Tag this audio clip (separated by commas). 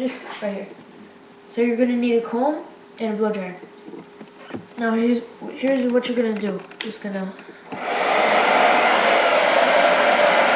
Speech